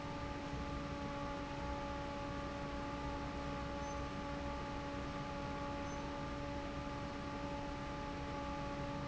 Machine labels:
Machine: fan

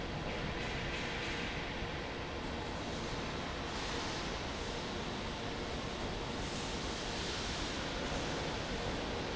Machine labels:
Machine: fan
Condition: normal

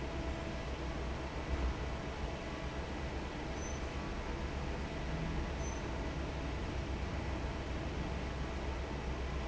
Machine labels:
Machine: fan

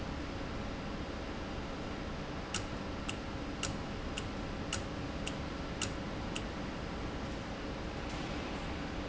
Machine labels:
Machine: valve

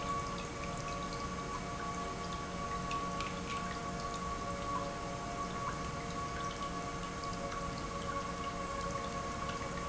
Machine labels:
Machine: pump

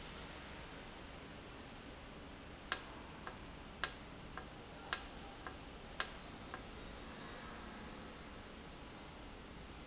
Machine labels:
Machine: valve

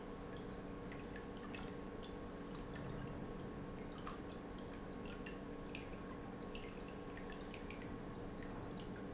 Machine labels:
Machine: pump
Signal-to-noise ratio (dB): 6 dB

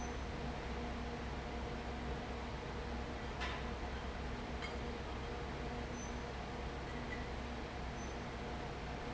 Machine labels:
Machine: fan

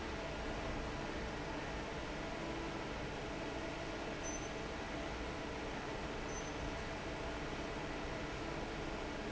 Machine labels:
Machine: fan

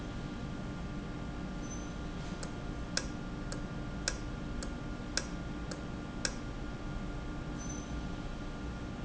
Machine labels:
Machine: valve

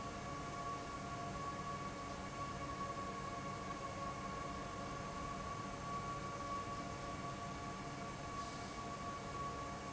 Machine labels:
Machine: fan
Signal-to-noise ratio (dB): 0 dB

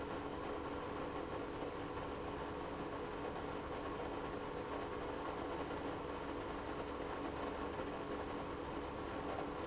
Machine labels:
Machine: pump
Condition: abnormal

